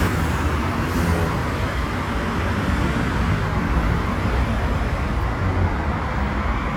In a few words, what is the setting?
street